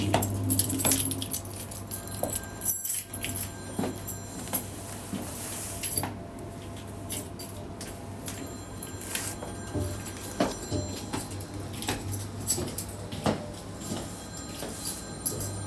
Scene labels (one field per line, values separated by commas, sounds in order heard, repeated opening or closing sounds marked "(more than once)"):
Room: kitchen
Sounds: keys, microwave, footsteps, phone ringing